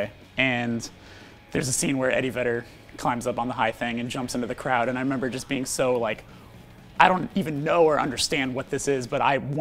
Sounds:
Speech, Music

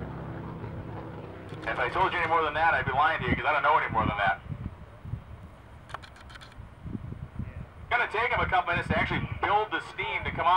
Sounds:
Speech, Vehicle

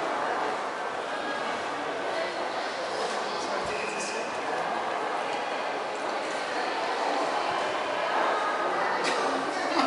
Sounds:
Speech

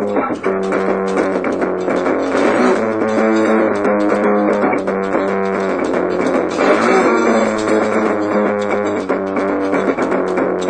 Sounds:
Musical instrument, Guitar, Plucked string instrument

